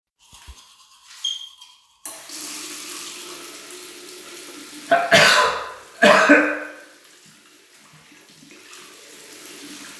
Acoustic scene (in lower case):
restroom